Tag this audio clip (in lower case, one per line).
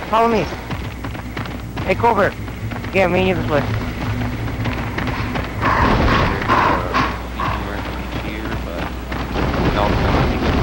speech